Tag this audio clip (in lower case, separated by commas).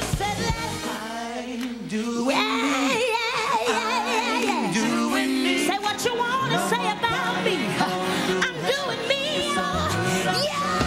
music